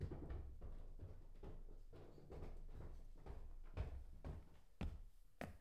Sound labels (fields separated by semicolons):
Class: footsteps; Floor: wooden floor